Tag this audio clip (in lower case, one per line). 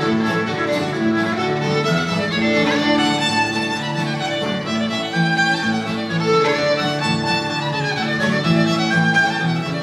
musical instrument
playing violin
music
violin